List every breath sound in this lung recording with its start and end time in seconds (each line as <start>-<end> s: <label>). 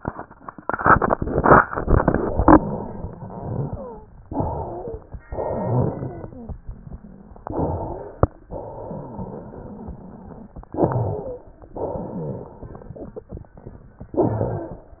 3.70-4.07 s: wheeze
4.23-5.20 s: inhalation
4.63-5.00 s: wheeze
5.28-6.58 s: exhalation
5.46-6.31 s: wheeze
7.38-8.35 s: inhalation
7.50-8.21 s: wheeze
8.48-10.52 s: exhalation
8.67-10.46 s: wheeze
10.70-11.63 s: inhalation
10.78-11.49 s: wheeze
11.73-12.93 s: exhalation
12.05-12.49 s: wheeze
14.13-15.00 s: inhalation
14.15-14.73 s: wheeze